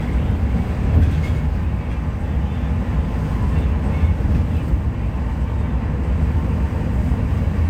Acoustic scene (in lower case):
bus